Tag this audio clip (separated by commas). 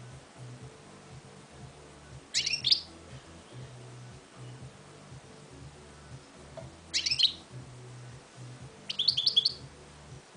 Music